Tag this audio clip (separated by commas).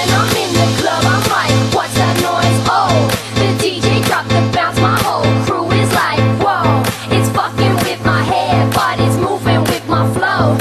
Music